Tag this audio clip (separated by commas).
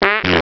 Fart